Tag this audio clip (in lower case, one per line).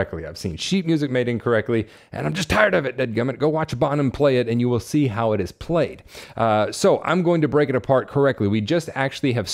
speech